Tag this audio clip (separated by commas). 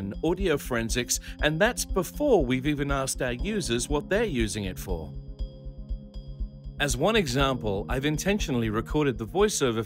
Music, Speech